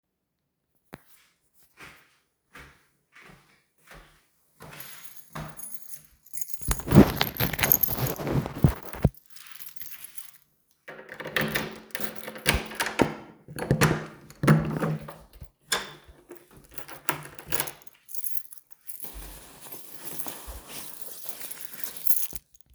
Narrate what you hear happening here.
I walk to the door, get my keys out of my pocket and put it into the door lock, I open the door and remove my jacket